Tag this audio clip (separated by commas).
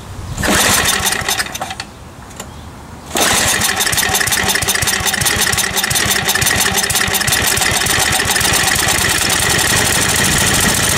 Engine